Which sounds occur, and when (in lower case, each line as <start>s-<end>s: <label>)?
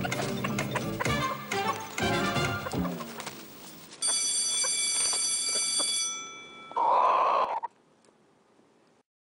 0.0s-0.8s: rooster
0.0s-3.8s: music
0.1s-0.2s: generic impact sounds
0.5s-0.7s: generic impact sounds
0.9s-1.1s: rooster
1.0s-1.1s: generic impact sounds
1.5s-1.6s: generic impact sounds
1.5s-1.7s: rooster
1.9s-2.1s: generic impact sounds
2.4s-2.5s: generic impact sounds
2.6s-3.3s: rooster
2.8s-3.4s: bird flight
3.2s-9.0s: mechanisms
4.0s-6.9s: bell
4.0s-4.1s: rooster
4.6s-4.7s: rooster
4.9s-5.2s: bird flight
5.5s-5.8s: rooster
6.2s-6.3s: tick
6.7s-6.7s: tick
6.7s-7.7s: rooster
8.0s-8.1s: tick
8.4s-8.6s: tick